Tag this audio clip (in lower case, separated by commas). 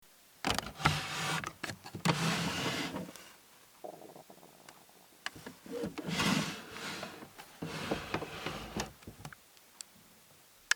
drawer open or close, home sounds